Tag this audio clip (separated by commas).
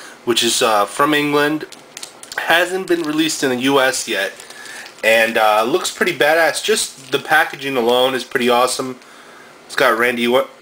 Speech